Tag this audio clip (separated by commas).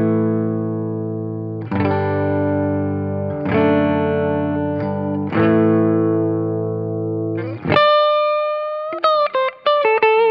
Music